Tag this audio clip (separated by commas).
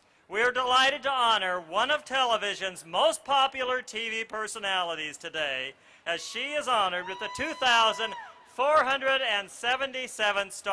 Speech